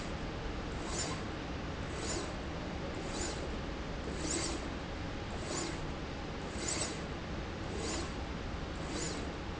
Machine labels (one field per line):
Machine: slide rail